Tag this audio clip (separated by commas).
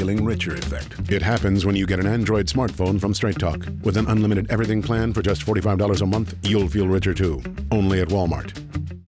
Speech, Music